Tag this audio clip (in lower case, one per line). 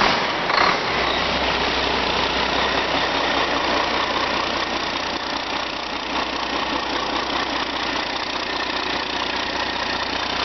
heavy engine (low frequency)
idling
engine